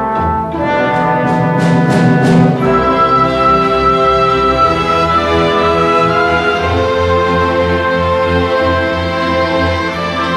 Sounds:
Music

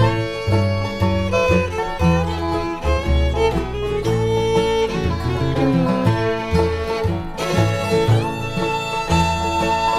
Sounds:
Country, Musical instrument, Bluegrass, Violin, Music

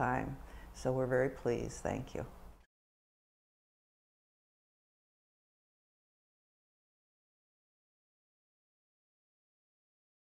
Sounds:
Speech

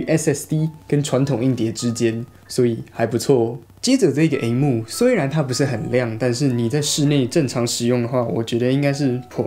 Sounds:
typing on typewriter

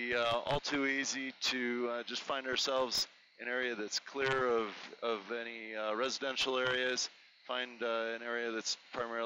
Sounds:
Speech

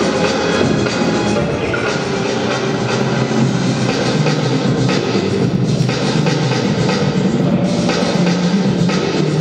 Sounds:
Music

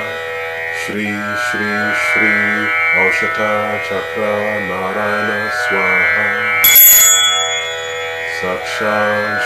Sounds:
Music, Mantra

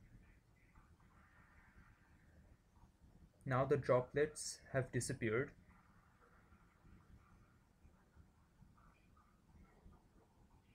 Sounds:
Speech

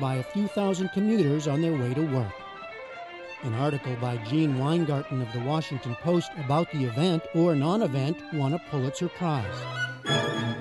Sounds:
Musical instrument, Music, Speech

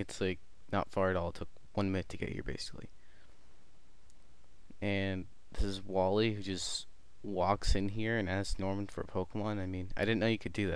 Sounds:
Speech

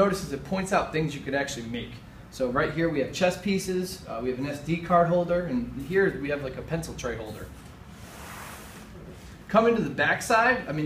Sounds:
Speech

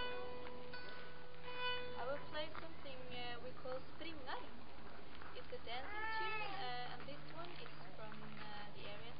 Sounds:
Music, Speech, fiddle, Musical instrument

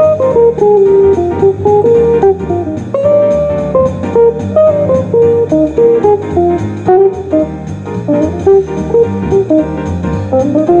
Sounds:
Plucked string instrument, Guitar, Strum, Musical instrument, Music

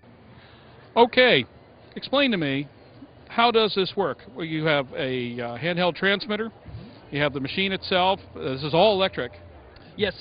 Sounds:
Speech

